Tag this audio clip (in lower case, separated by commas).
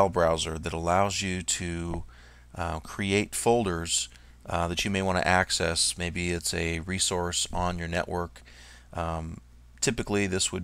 speech